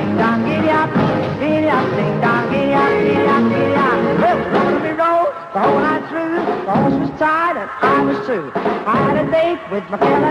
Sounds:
music

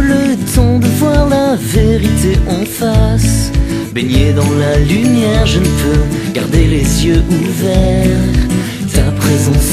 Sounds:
music

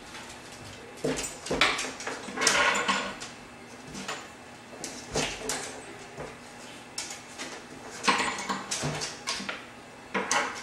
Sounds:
opening or closing drawers

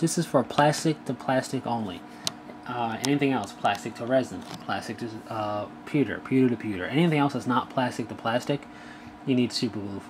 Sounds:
speech

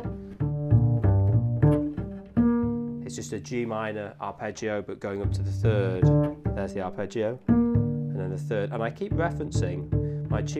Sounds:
playing double bass

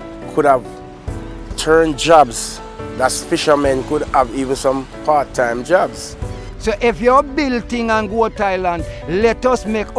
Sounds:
music
speech

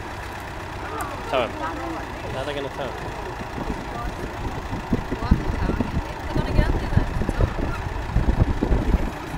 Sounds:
speech
vehicle

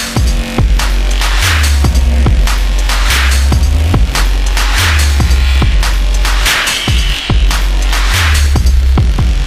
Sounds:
dubstep
music
electronic music

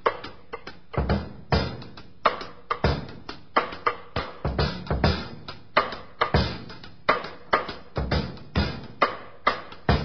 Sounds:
bass drum
musical instrument
drum
music
drum kit

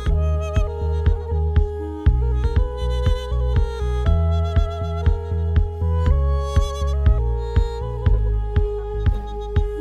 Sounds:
music

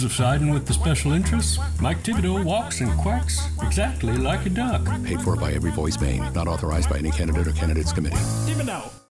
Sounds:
speech
animal
quack
music
duck

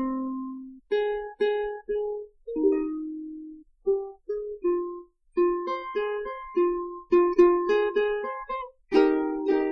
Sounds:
music

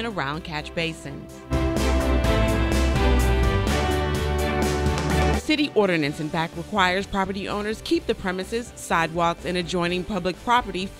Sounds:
music
speech

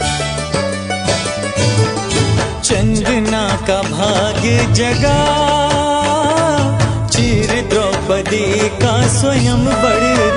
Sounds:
music
music of bollywood
music of asia

